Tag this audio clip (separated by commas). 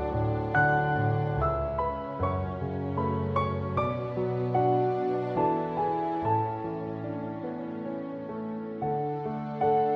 Music